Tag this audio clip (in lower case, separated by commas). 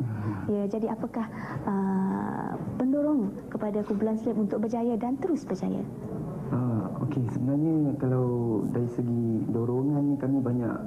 speech